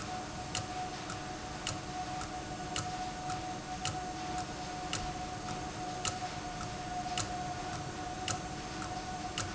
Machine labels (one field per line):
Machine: valve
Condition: abnormal